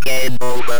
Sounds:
human voice
speech

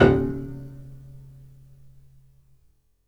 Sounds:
musical instrument
piano
music
keyboard (musical)

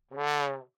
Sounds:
music
musical instrument
brass instrument

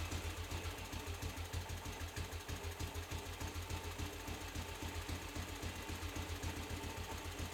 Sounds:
vehicle
engine
motorcycle
motor vehicle (road)

